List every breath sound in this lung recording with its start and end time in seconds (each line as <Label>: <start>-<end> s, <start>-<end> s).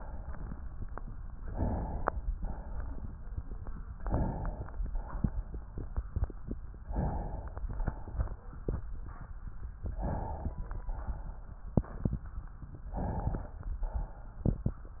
Inhalation: 1.30-2.23 s, 3.91-4.72 s, 6.82-7.68 s, 9.84-10.84 s, 12.92-13.74 s
Exhalation: 2.23-3.33 s, 4.71-5.79 s, 7.67-8.63 s, 10.86-11.72 s, 13.76-14.44 s